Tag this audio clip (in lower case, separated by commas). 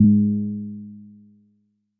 piano, music, musical instrument, keyboard (musical)